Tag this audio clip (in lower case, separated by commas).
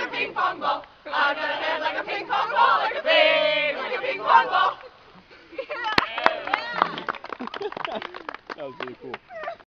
speech